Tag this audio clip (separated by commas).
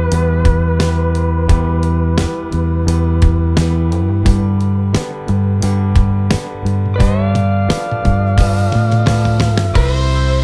Music